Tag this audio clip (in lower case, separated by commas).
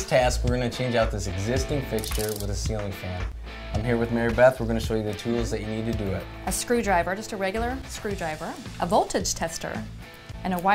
music, speech